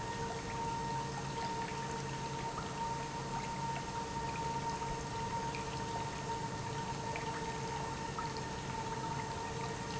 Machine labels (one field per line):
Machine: pump